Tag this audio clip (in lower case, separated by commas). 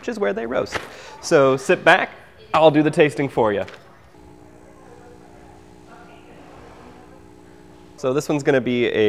speech